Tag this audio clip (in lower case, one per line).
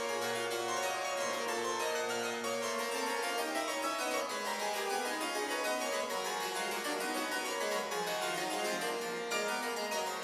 playing harpsichord
music
harpsichord